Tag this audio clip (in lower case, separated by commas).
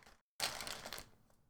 crinkling